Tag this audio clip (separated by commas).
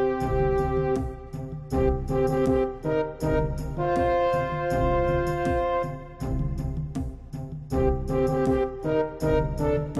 Music